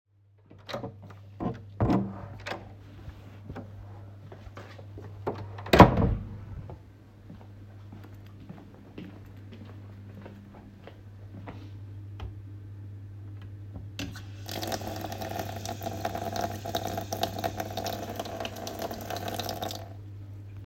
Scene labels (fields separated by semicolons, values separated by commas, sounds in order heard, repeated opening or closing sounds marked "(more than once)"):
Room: laboratory; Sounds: door, footsteps, running water